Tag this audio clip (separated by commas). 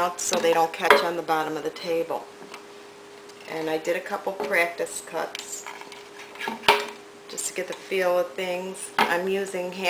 Speech, inside a small room